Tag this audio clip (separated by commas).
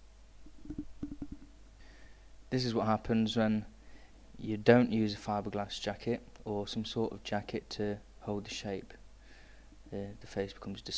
Speech